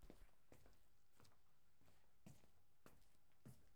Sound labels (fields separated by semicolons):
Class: footsteps; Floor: tiled floor